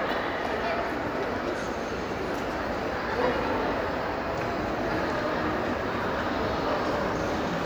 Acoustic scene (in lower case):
crowded indoor space